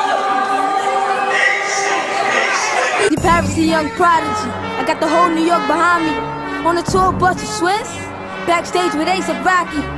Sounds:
inside a large room or hall, Rapping, Music, Speech

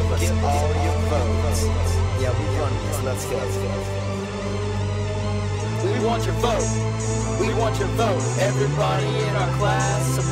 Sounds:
Music, Speech

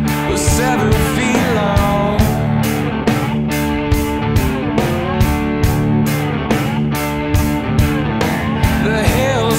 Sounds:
Music

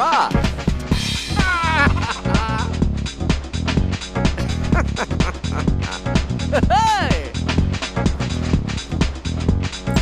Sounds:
Music

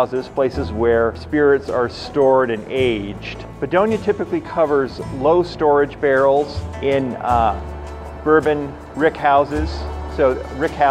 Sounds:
Speech, Music

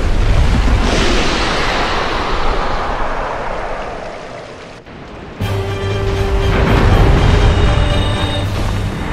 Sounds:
Music

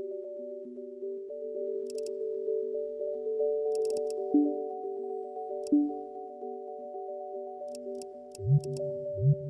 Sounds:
Music

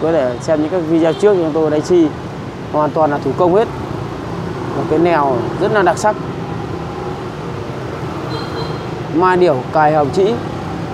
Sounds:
Speech

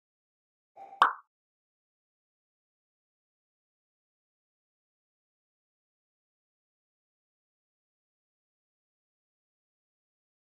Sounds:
Plop

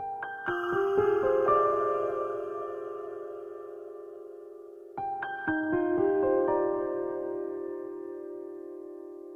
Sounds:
Music

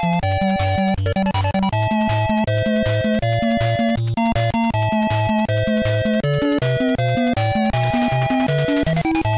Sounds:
Music

